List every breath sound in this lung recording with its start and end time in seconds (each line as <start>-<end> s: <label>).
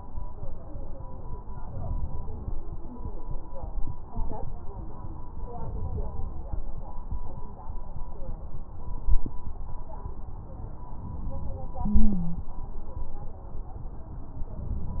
1.56-2.36 s: inhalation
5.61-6.42 s: inhalation
11.90-12.42 s: stridor